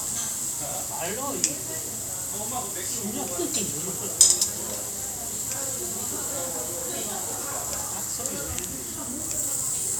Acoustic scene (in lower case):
restaurant